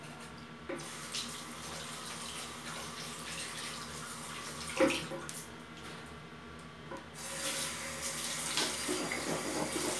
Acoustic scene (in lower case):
restroom